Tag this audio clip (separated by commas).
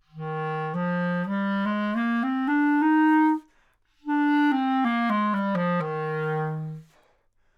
Musical instrument, Music, Wind instrument